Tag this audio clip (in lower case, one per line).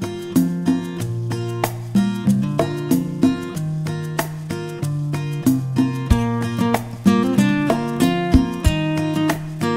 music